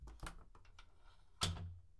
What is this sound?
window opening